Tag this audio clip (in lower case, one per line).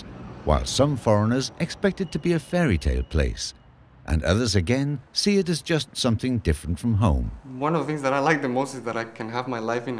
speech